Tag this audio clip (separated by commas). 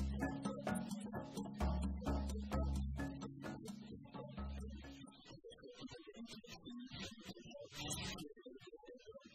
Speech, Music